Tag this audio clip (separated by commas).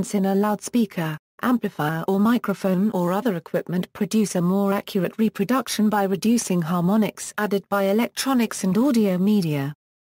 Speech